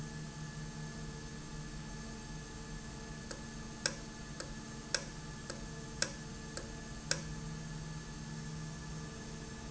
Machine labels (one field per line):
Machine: valve